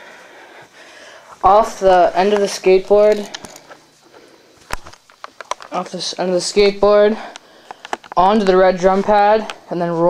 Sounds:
speech

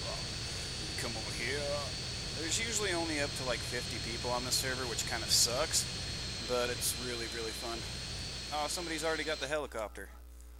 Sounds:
speech

